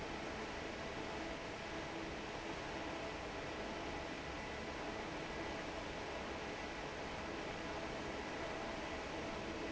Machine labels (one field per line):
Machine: fan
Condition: normal